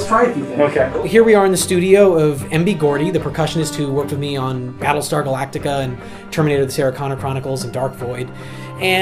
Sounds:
Music, Speech

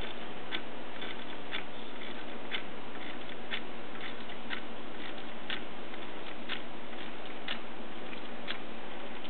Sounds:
Tick-tock, Tick

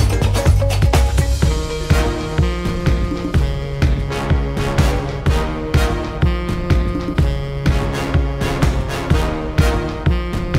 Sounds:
Music

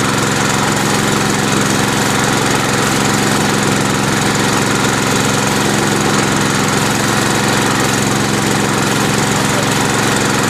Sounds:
Vibration

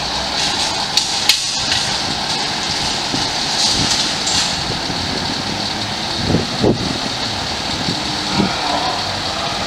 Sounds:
Medium engine (mid frequency), Heavy engine (low frequency), Accelerating, Vehicle, Idling, Engine

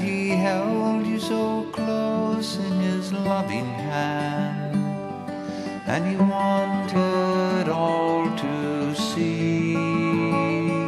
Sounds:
Music

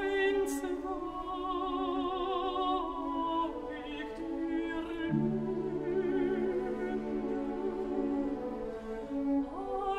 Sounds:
Music

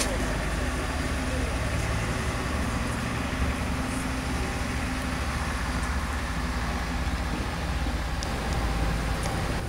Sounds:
outside, urban or man-made, Speech

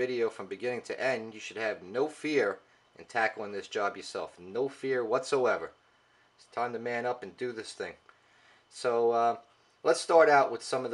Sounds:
Speech

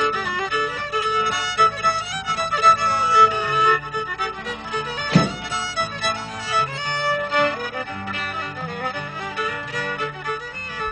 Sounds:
Music

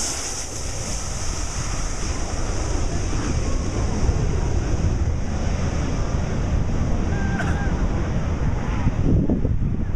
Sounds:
Aircraft, Vehicle, Fixed-wing aircraft

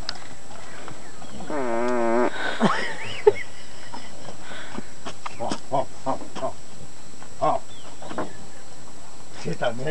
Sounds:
bovinae, Moo, cattle mooing, livestock

